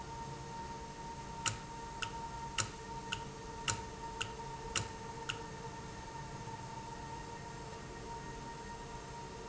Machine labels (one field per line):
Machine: valve